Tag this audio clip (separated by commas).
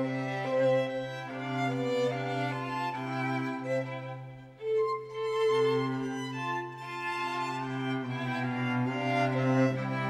Music, Sad music